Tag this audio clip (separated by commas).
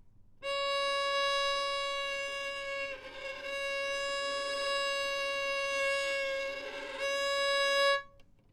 Music, Musical instrument, Bowed string instrument